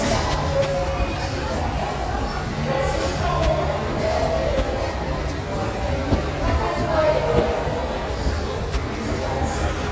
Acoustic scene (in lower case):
subway station